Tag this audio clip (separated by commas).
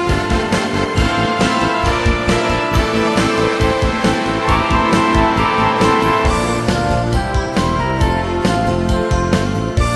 Music